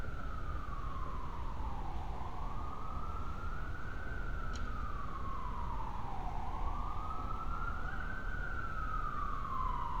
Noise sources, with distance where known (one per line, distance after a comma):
siren, far